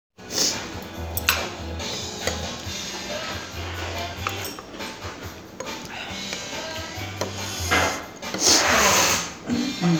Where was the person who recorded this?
in a restaurant